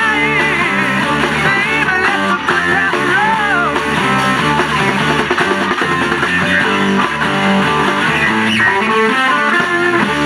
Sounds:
music, electric guitar, musical instrument, plucked string instrument, guitar

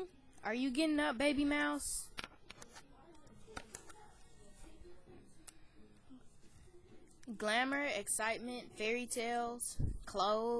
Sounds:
speech

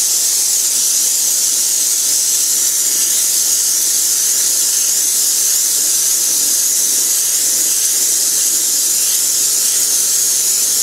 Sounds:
hiss, steam

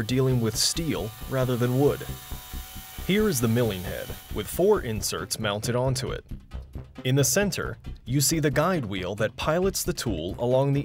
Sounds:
tools, music, speech

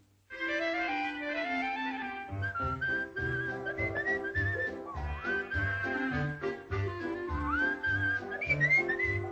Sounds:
music

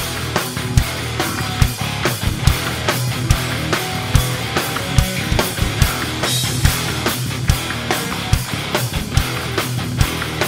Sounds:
dance music, music, jazz, rhythm and blues

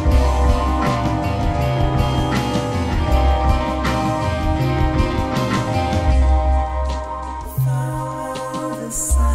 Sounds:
music, exciting music

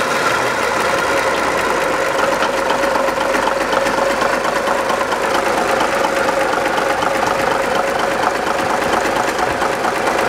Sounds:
engine, vehicle, outside, rural or natural

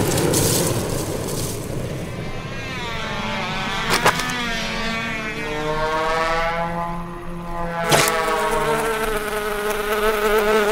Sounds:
wasp

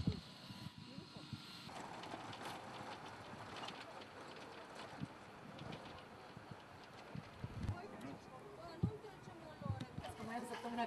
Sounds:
outside, urban or man-made, speech

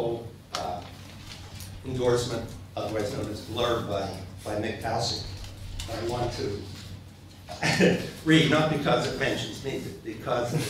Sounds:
speech

